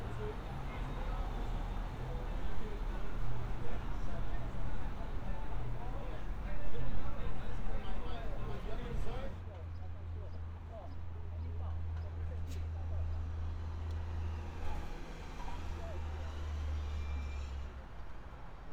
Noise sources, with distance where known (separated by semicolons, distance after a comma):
medium-sounding engine; person or small group talking